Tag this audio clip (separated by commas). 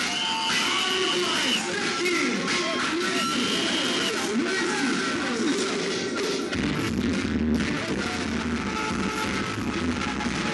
Music